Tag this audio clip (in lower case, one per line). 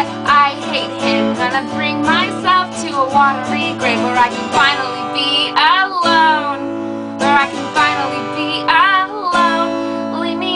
speech
music